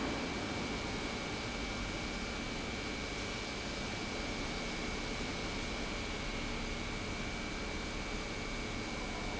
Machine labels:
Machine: pump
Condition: normal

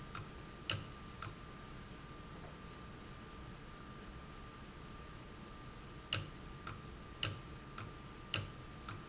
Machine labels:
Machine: valve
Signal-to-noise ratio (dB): 6 dB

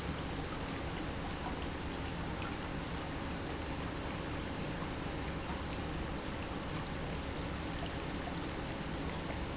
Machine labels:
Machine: pump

